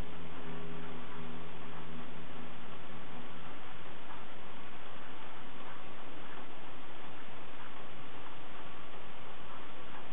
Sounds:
speech, mantra

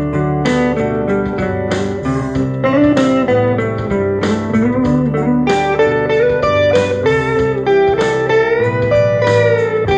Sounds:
electric guitar, music, guitar, steel guitar

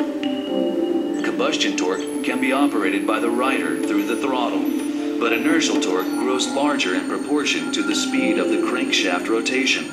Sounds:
speech

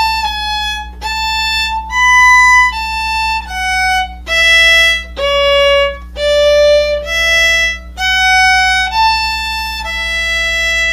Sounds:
fiddle, music, musical instrument

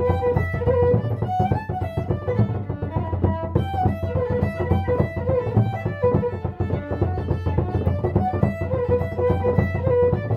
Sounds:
musical instrument, music, violin

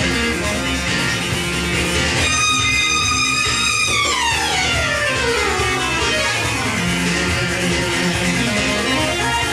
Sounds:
music

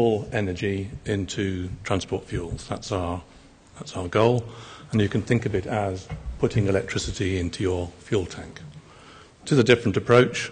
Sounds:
speech

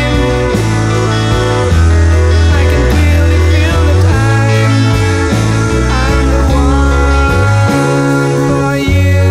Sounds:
music

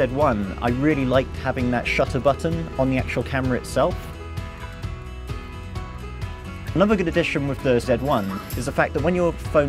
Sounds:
music, speech

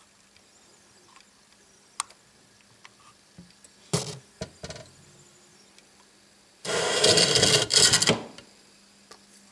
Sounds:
music, bowed string instrument, fiddle, string section

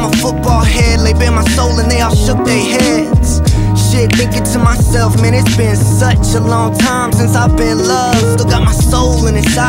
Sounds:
pop music, music

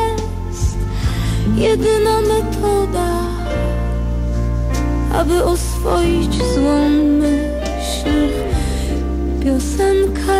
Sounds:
vocal music, music

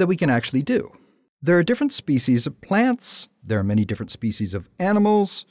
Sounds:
speech

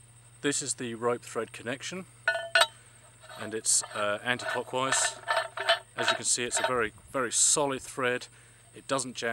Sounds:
speech

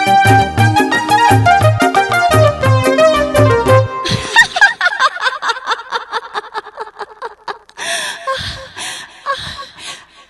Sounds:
music, inside a large room or hall

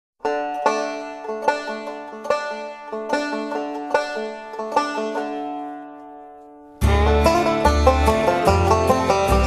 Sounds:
plucked string instrument, musical instrument, music, banjo

